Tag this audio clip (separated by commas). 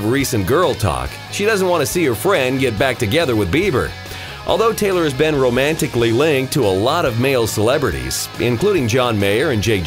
Music, Speech